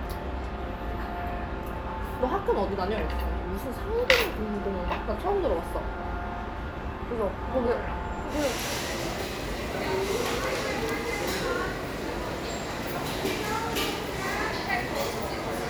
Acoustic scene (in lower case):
restaurant